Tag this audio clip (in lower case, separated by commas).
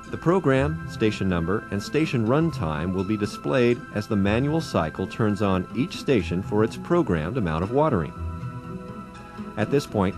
music, speech